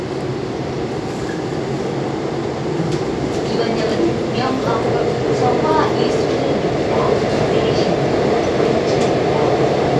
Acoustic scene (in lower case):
subway train